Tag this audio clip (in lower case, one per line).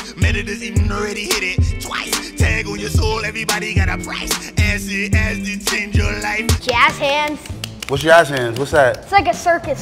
rapping